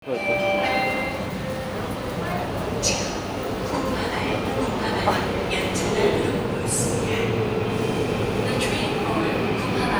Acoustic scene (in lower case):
subway station